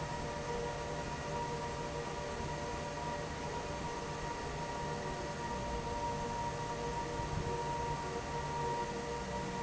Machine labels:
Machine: fan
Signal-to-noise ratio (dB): -6 dB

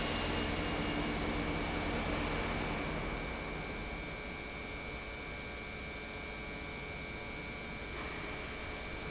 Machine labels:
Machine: pump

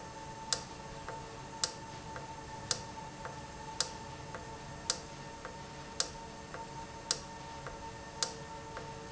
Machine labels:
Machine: valve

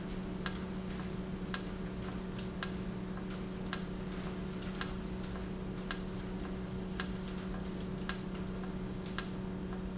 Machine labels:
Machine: valve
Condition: normal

